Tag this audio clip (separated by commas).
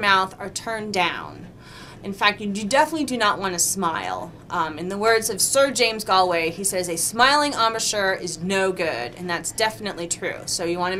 Speech